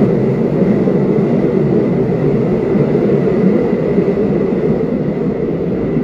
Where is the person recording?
on a subway train